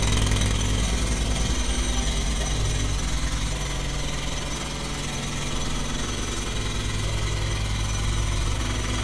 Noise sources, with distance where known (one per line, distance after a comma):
jackhammer, near